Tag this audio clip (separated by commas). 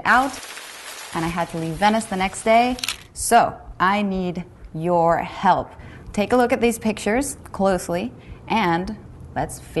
Speech